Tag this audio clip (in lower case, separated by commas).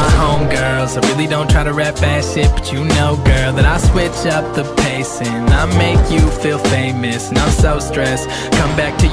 music